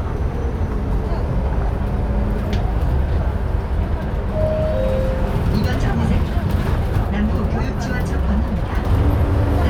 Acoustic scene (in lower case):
bus